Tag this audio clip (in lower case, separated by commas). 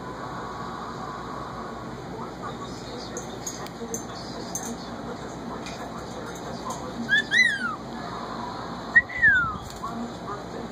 whistling, speech